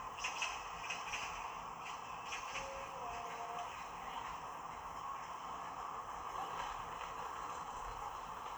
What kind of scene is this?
park